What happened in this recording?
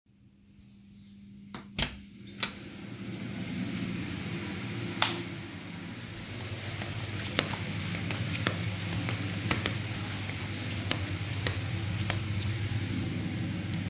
I opened the door entered the kitchen turned on the lamp while the range hood was working